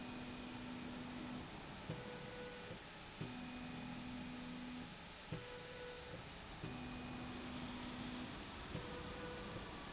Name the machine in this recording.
slide rail